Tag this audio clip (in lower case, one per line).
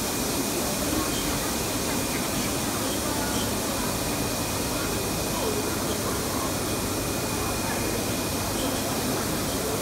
speech